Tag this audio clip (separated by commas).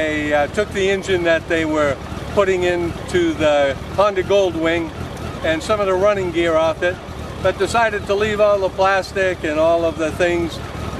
Speech